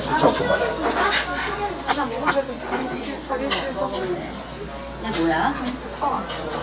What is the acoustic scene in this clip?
restaurant